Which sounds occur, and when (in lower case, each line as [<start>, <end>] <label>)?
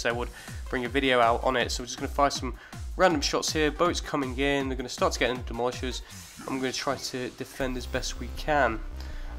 [0.00, 0.26] man speaking
[0.00, 9.35] music
[0.00, 9.35] video game sound
[0.28, 0.57] breathing
[0.65, 2.53] man speaking
[2.51, 2.85] breathing
[2.95, 6.00] man speaking
[5.98, 6.30] breathing
[6.36, 8.79] man speaking
[8.93, 9.35] breathing